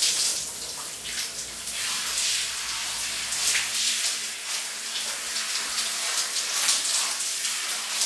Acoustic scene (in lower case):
restroom